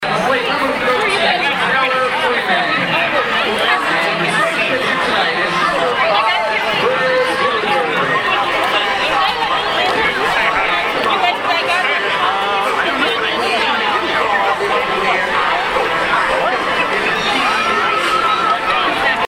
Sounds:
Crowd, Human group actions

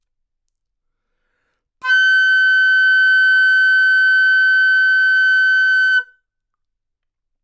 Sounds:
woodwind instrument, Musical instrument, Music

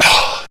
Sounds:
Respiratory sounds, Breathing

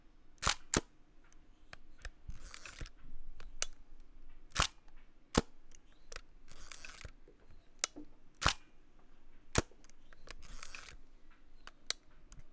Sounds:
Mechanisms, Camera

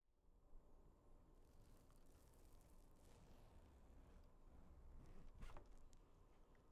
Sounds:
home sounds, Zipper (clothing)

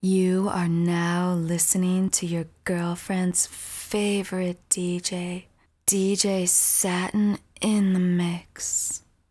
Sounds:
Speech, Female speech, Human voice

